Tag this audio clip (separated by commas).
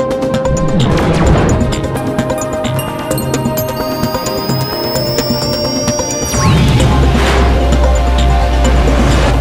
Music